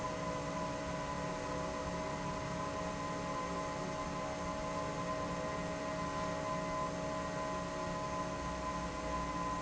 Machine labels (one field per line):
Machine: fan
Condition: normal